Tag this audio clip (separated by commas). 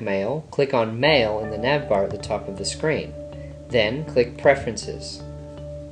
Speech, Music